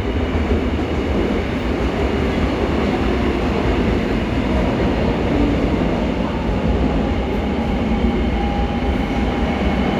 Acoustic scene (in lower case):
subway station